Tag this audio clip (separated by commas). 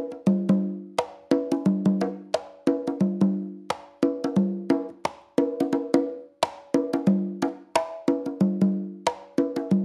playing congas